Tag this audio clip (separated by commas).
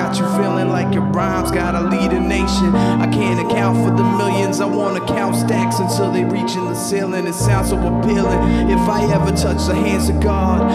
Music